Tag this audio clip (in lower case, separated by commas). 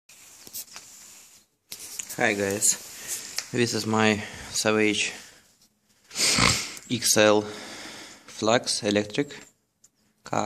speech